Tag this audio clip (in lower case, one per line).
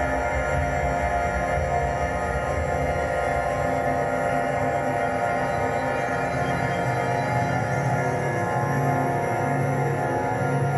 sound effect
music